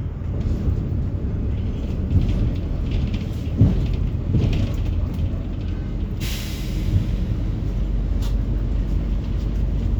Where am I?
on a bus